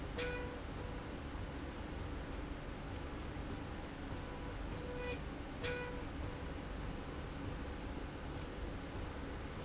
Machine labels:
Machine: slide rail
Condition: normal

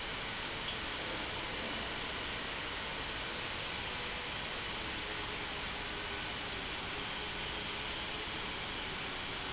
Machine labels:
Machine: pump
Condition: normal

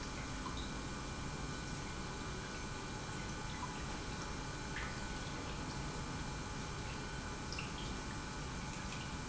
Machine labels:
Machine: pump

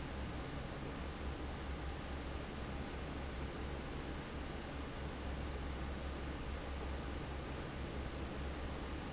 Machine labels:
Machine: fan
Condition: normal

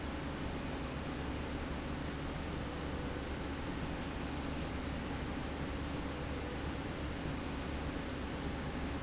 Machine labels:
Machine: slide rail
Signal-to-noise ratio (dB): -6 dB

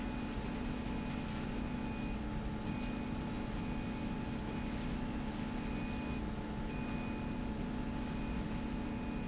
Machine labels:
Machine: slide rail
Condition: normal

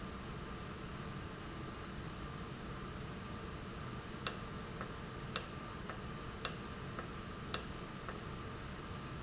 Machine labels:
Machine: valve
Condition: normal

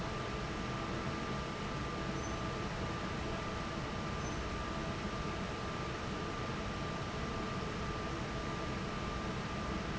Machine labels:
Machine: fan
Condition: normal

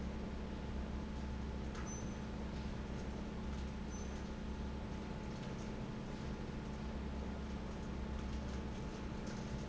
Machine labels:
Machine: fan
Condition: normal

